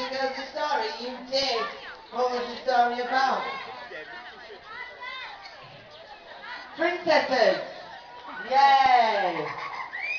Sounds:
Speech

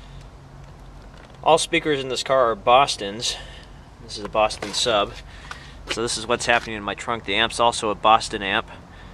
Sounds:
Speech

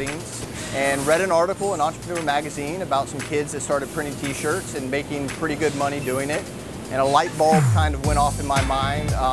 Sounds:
Speech, Music

